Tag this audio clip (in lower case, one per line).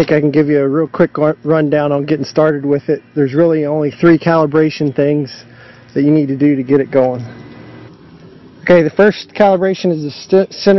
speech